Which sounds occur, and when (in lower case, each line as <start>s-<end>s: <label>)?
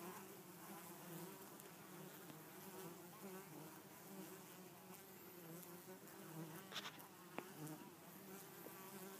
0.0s-9.1s: bee or wasp
0.0s-9.1s: wind
6.7s-6.9s: generic impact sounds